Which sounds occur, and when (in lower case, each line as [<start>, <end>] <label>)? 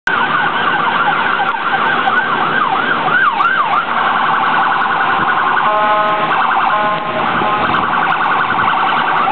[0.00, 9.31] wind
[0.01, 9.31] police car (siren)
[0.01, 9.31] vehicle
[5.29, 6.20] vehicle horn
[6.58, 7.25] vehicle horn
[7.39, 8.20] vehicle horn